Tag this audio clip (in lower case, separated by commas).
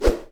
swish